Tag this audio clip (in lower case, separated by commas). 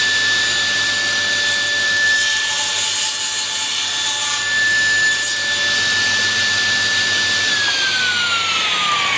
tools